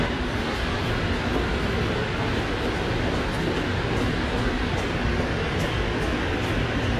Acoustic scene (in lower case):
subway station